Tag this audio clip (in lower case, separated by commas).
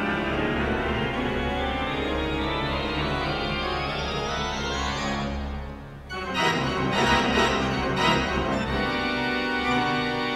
music, musical instrument, piano, keyboard (musical), playing piano